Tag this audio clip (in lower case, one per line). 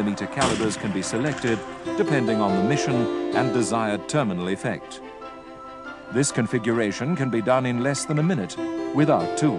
firing cannon